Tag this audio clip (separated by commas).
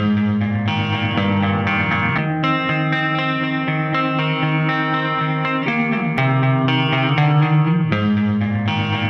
Music